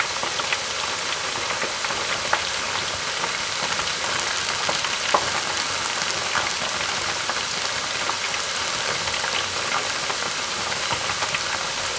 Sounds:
home sounds, frying (food)

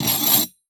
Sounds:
screech

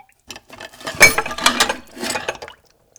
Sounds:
domestic sounds, dishes, pots and pans

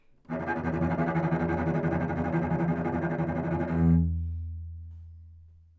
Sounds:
music, bowed string instrument, musical instrument

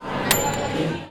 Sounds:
microwave oven, domestic sounds

